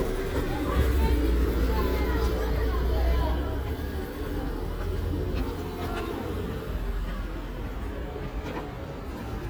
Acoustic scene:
residential area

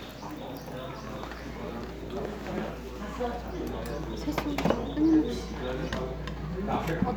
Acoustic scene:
crowded indoor space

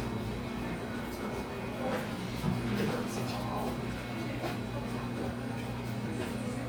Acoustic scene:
crowded indoor space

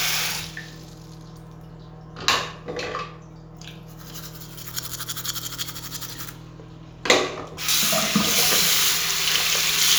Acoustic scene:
restroom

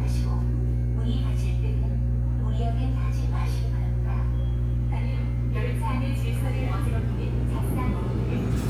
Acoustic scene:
subway station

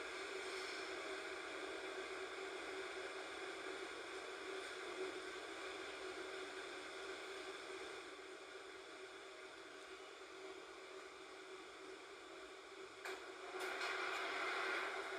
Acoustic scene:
subway train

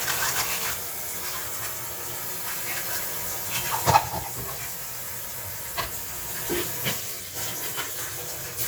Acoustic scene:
kitchen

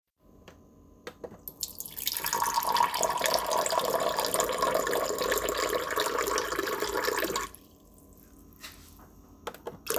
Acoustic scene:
kitchen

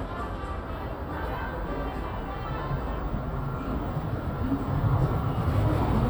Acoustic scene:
subway station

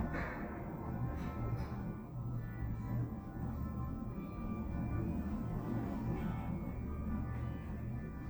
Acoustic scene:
elevator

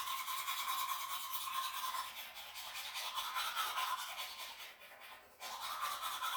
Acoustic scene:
restroom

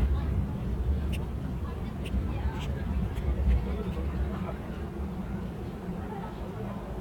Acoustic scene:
park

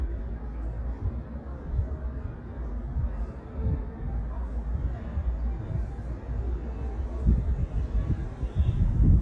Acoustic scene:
residential area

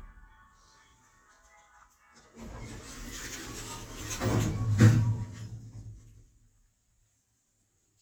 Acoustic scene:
elevator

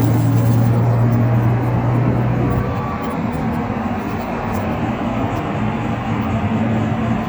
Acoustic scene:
bus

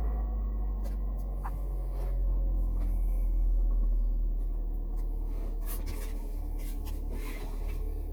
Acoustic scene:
car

